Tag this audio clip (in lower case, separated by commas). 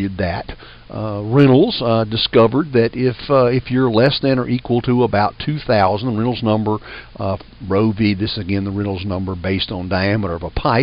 monologue